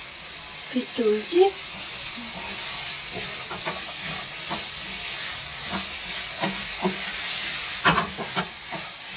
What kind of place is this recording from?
kitchen